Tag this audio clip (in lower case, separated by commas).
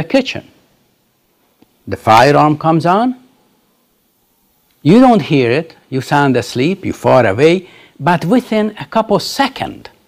narration, speech